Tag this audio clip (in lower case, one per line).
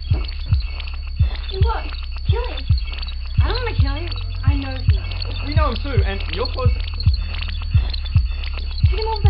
speech
music